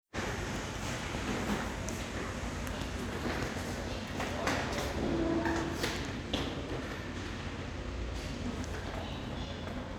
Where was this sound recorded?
in an elevator